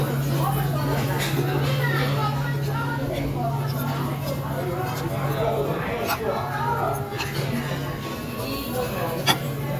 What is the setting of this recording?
restaurant